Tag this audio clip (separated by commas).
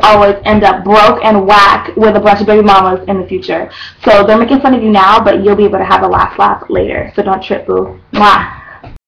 Speech